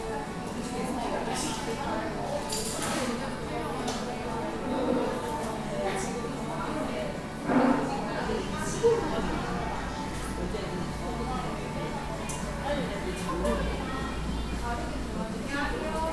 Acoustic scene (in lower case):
cafe